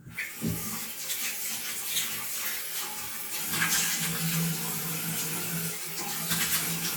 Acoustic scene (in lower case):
restroom